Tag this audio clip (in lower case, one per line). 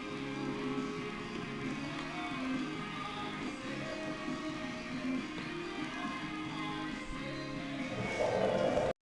music